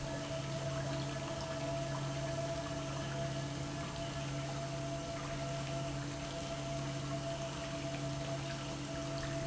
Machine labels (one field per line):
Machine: pump